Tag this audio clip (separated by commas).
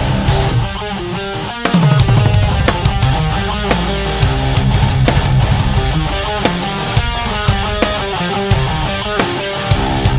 Guitar, Music